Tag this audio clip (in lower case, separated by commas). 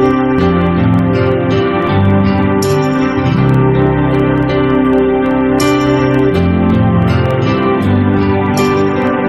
music